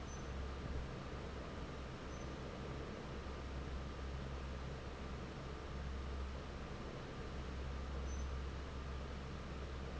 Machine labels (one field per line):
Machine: fan